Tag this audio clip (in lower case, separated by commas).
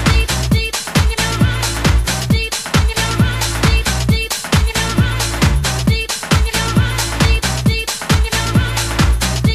music, disco, pop music, dance music